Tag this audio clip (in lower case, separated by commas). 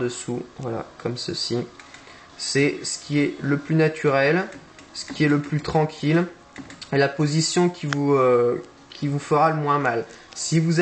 speech